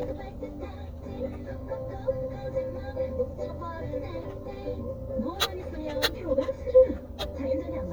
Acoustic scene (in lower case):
car